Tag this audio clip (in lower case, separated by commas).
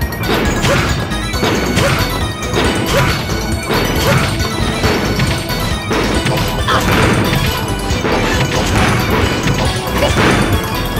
music, outside, urban or man-made